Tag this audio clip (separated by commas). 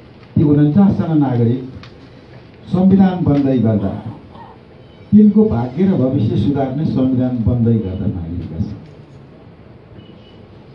Speech, man speaking, Narration